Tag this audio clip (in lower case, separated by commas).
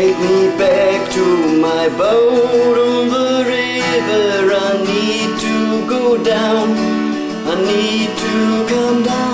acoustic guitar, strum, music, guitar, musical instrument, plucked string instrument